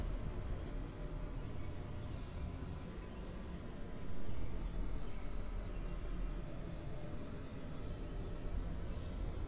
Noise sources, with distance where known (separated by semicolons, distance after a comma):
background noise